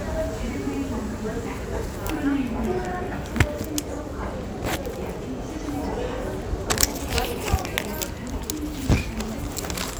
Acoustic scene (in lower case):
crowded indoor space